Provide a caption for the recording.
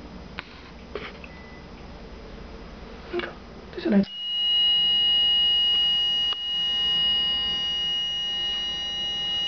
Microphone giving feedback noise when women tries to talk